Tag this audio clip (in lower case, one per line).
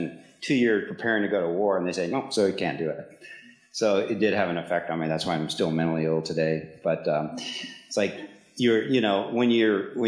speech